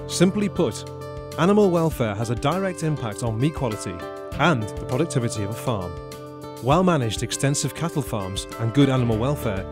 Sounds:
Speech, Music

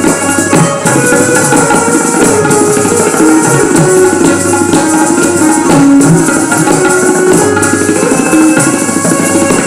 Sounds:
Wood block, Percussion, Music

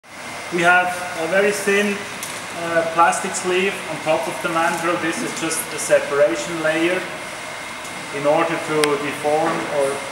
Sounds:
Speech

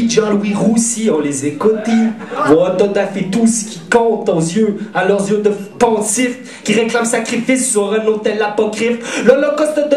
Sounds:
Speech

